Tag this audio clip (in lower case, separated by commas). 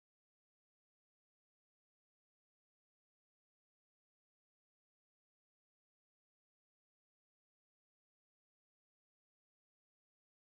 silence